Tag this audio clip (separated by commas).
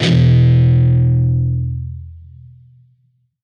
Plucked string instrument, Guitar, Music, Musical instrument